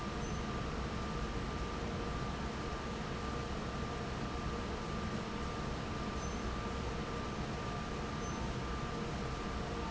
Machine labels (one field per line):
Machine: fan